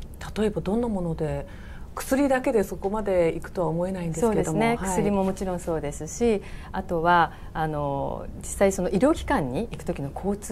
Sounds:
inside a large room or hall, Speech

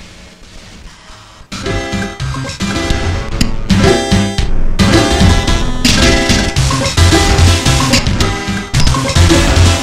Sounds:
Music, Piano, Keyboard (musical), Musical instrument, Synthesizer

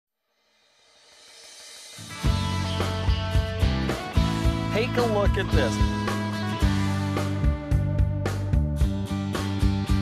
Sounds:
Speech, Music

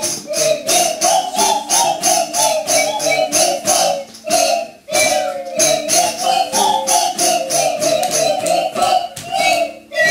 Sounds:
Music

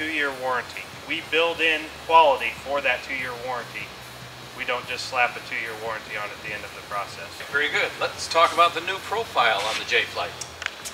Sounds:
Music, Speech

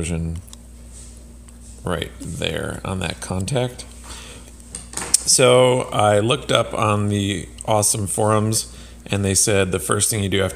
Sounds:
Speech

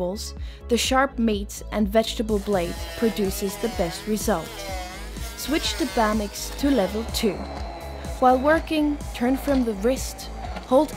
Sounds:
Speech, Music

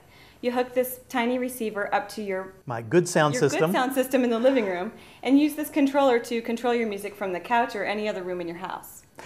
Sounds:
Speech

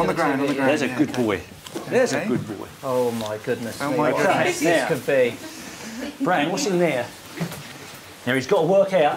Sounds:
Speech

